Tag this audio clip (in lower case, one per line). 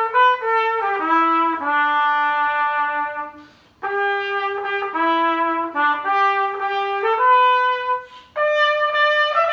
playing cornet